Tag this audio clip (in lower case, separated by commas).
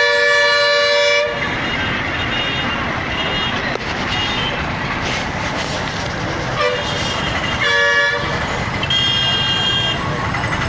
toot, outside, urban or man-made